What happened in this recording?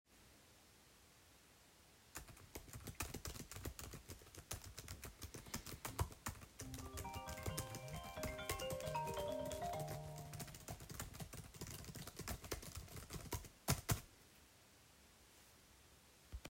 I was typing very fast the keyboard of my laptop. Suddenly, the phone was ringing, but I did not answer it and kept on typing. A few seconds after the phone was ringing, I also finished typing.